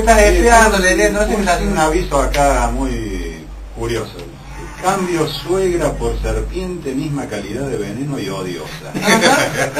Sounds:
speech

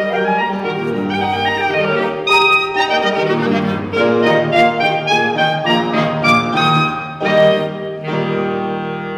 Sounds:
woodwind instrument
inside a large room or hall
clarinet
playing clarinet
musical instrument
piano
music

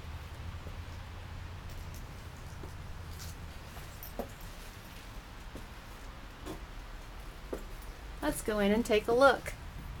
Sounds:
speech

